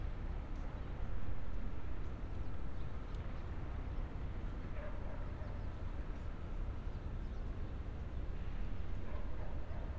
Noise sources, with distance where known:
background noise

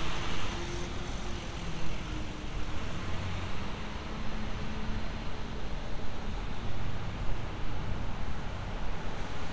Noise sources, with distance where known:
large-sounding engine

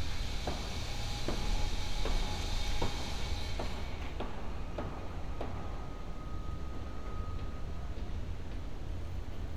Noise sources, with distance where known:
unidentified powered saw

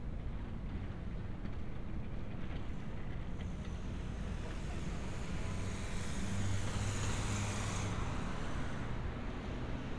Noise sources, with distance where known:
small-sounding engine

